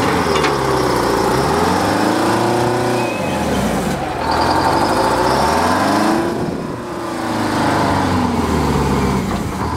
A truck revs up its engine and begins to drive